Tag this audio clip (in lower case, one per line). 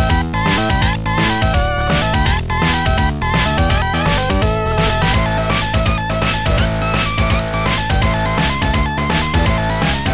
video game music
funk
music